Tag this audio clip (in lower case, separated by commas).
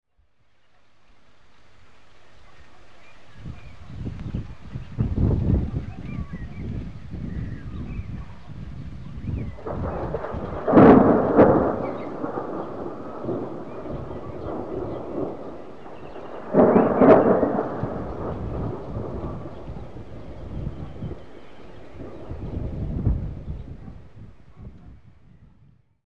thunder, thunderstorm